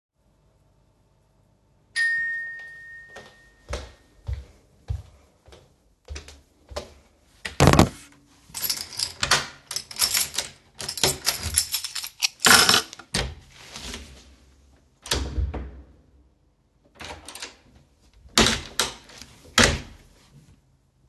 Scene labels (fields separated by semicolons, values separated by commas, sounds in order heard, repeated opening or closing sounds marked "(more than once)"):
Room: hallway; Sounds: bell ringing, footsteps, keys, door (more than once)